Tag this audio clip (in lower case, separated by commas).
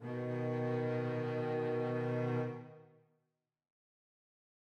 music, musical instrument, bowed string instrument